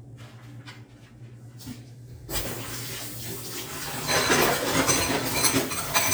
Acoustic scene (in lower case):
kitchen